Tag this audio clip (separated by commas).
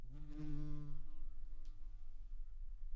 Insect, Buzz, Animal, Wild animals